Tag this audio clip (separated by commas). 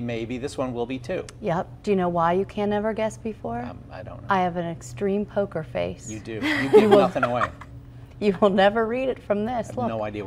Speech